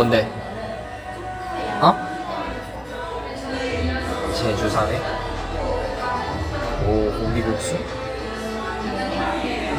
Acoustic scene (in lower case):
cafe